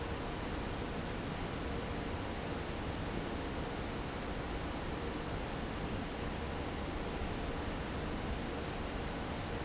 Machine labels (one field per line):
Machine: fan